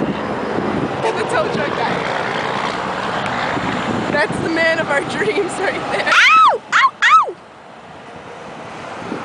Young women speaking with car driving in background and then young women shrieking